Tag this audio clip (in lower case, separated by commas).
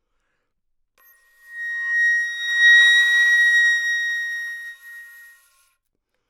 music, musical instrument, woodwind instrument